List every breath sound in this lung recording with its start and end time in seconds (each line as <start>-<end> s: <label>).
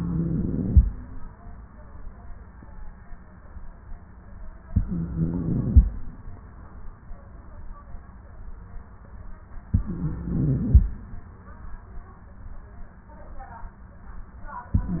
0.00-0.81 s: inhalation
4.73-5.89 s: inhalation
9.73-10.89 s: inhalation
14.73-15.00 s: inhalation